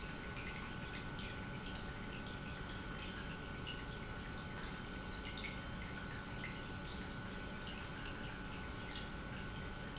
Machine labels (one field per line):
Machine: pump